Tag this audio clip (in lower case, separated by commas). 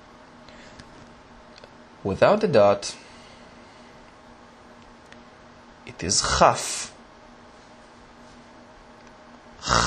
speech